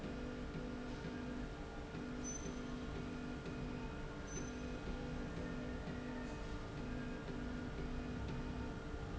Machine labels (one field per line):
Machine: slide rail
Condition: normal